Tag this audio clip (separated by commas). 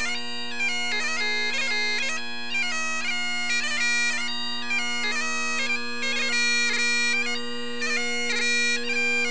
playing bagpipes